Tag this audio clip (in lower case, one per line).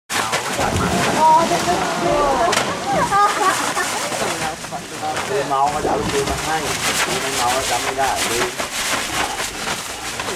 speech
animal
roaring cats
wild animals